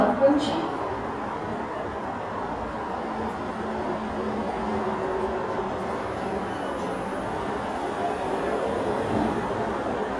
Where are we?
in a subway station